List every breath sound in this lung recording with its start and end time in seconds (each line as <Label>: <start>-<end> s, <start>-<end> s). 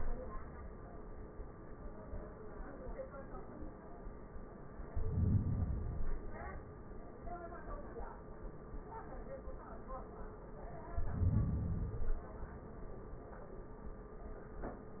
Inhalation: 4.85-5.86 s, 10.81-11.91 s
Exhalation: 5.87-7.10 s, 11.92-13.00 s